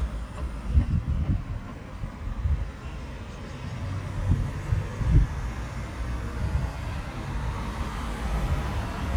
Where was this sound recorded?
on a street